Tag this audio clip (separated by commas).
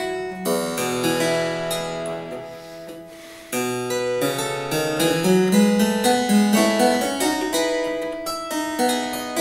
playing harpsichord